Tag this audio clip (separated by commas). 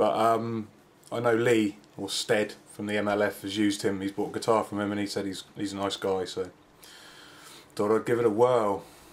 Speech